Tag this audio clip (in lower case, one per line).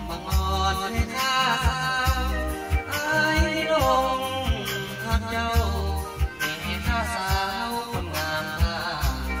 music